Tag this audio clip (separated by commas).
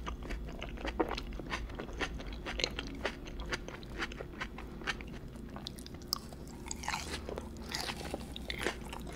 people eating apple